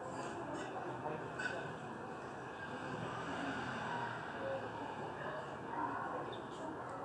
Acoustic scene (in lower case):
residential area